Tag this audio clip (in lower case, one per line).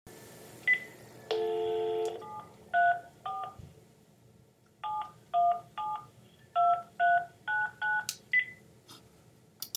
alarm
telephone